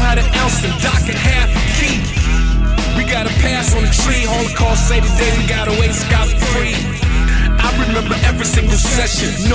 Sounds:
music

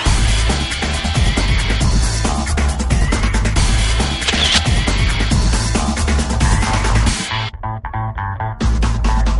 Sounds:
music
single-lens reflex camera

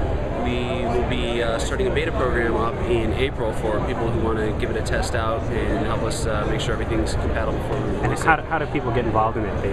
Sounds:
speech

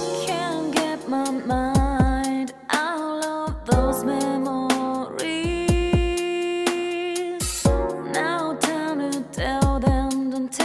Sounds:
music

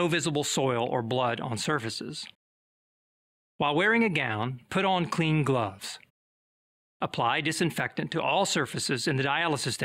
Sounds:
speech
inside a small room

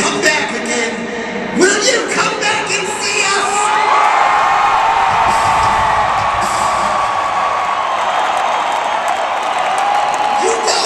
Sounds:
speech
music

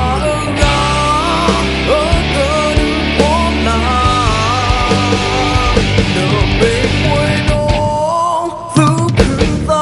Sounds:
music

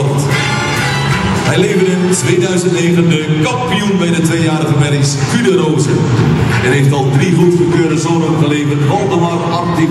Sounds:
speech
music

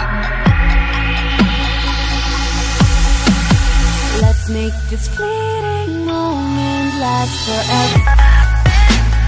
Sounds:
music

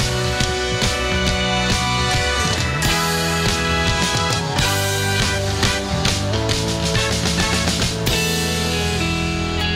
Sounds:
blues
dance music
music

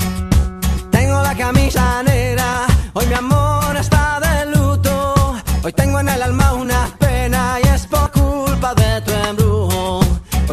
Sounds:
music of africa

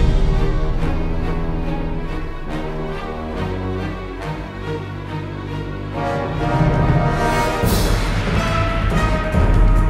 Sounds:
music

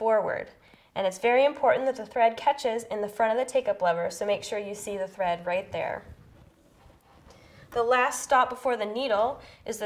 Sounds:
speech

